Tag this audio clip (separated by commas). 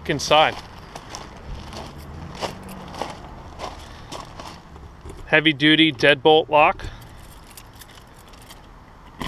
footsteps, Speech